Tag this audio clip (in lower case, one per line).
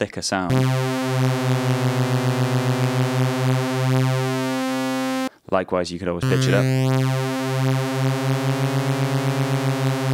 playing synthesizer